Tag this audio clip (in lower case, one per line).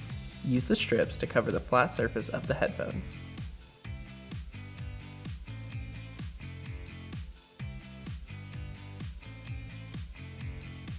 speech
music